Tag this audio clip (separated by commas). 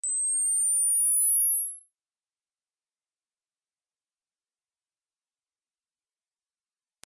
Mechanisms, Camera